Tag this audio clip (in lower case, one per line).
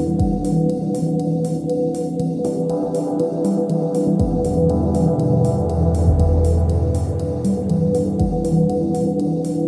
music
ambient music